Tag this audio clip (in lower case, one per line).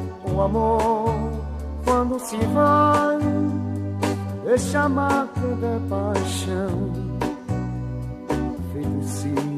guitar
music
country
blues